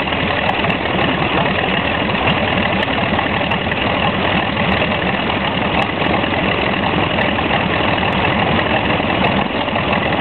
A vehicle is idling